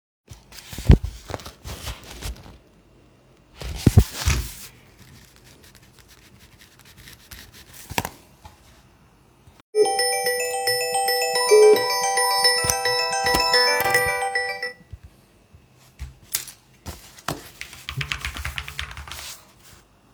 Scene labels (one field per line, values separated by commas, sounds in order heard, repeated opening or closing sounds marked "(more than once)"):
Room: office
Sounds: phone ringing, keyboard typing